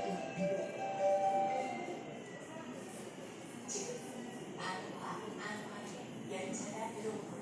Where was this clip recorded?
in a subway station